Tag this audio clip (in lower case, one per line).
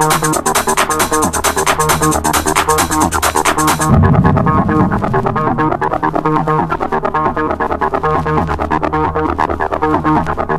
music